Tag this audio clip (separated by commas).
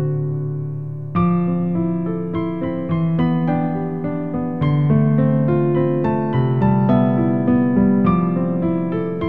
Music